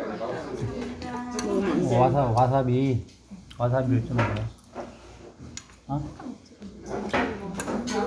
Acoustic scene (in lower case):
restaurant